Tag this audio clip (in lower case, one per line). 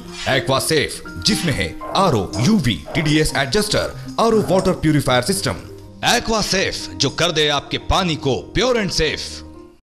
speech
music